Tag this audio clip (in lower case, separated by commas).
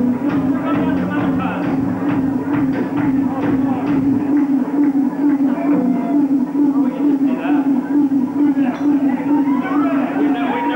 music, speech